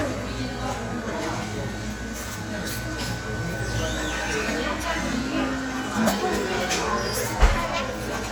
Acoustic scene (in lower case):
cafe